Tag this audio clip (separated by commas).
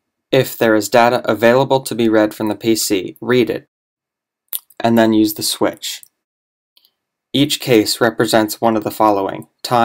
Speech